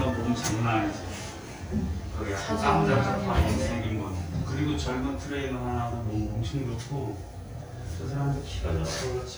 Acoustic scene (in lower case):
elevator